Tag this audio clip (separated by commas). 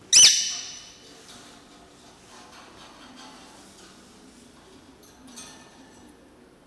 Animal, Bird, Wild animals